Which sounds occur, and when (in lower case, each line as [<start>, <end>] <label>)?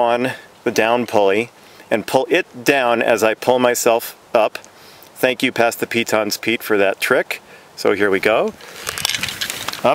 [0.00, 9.94] wind
[4.58, 5.14] breathing
[7.74, 8.51] man speaking
[8.61, 9.84] generic impact sounds
[9.80, 9.94] human voice